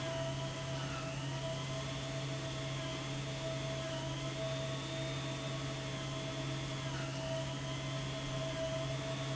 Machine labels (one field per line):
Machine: pump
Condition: abnormal